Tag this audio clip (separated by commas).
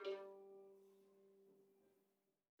Bowed string instrument, Musical instrument, Music